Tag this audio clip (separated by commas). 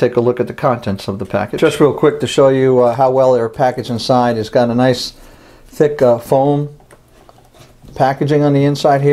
Speech